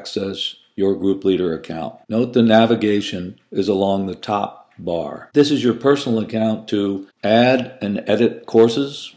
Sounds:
speech

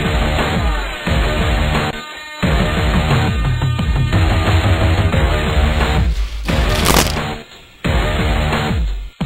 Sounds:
music

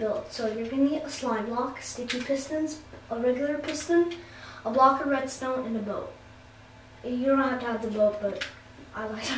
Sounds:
speech

